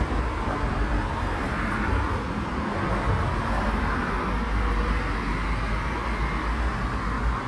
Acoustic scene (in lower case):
street